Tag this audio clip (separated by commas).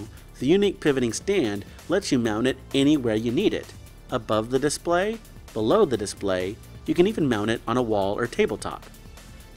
Music, Speech